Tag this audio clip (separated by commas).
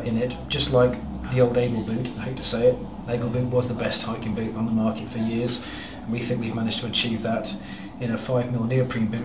Speech